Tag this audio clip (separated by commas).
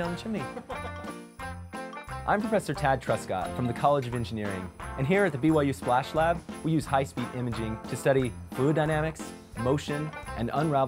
Speech, Music